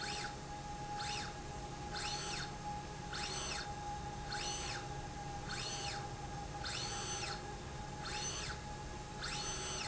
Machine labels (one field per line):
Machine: slide rail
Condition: normal